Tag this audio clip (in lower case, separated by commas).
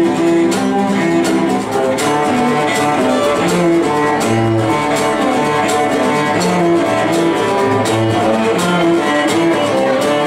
music, musical instrument, violin